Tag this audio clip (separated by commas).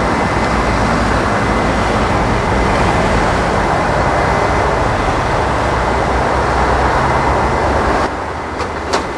Vehicle, Aircraft, airplane